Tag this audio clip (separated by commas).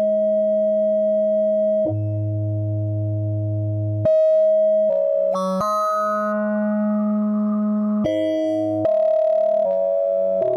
Music, Synthesizer